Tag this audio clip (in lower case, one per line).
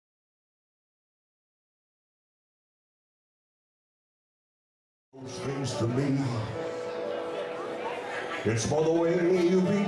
singing
music